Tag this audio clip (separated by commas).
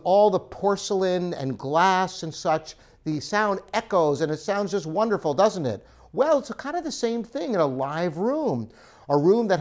Speech